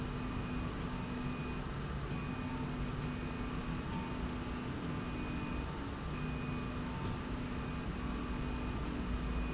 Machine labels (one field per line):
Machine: slide rail